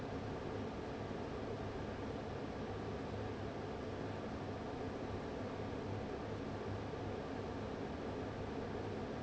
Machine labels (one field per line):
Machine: fan